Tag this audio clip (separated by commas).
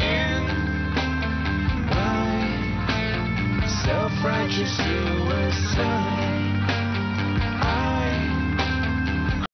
Music